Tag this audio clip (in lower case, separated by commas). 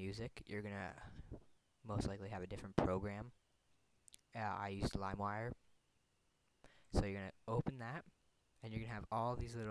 speech